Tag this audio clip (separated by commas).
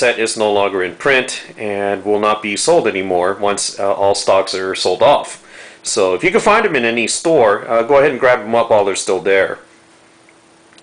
Speech